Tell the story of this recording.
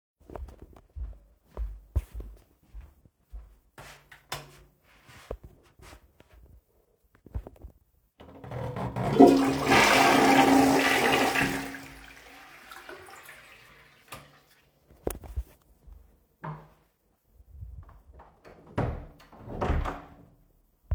Turning on the light, flushing the toilet and turning off the light then closing the door